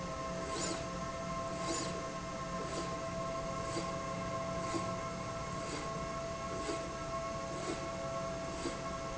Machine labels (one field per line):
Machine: slide rail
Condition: abnormal